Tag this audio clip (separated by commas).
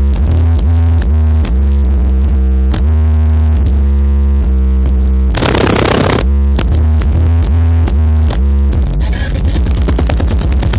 Electronic music, Music